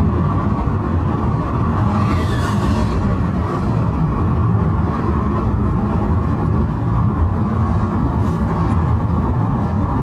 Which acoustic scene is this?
car